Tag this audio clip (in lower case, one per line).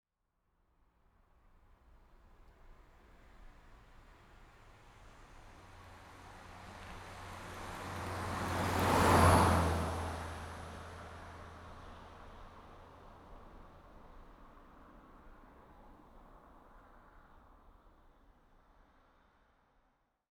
vehicle
car passing by
motor vehicle (road)
car
engine